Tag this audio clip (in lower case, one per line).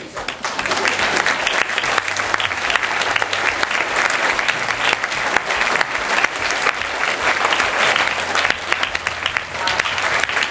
applause
people clapping